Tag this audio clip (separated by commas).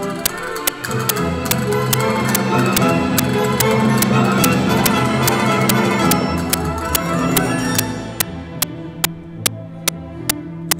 playing castanets